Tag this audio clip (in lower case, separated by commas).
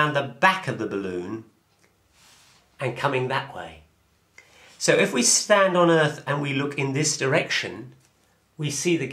writing, speech